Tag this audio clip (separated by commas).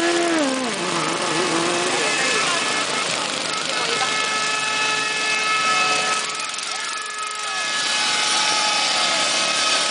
Speech, Vehicle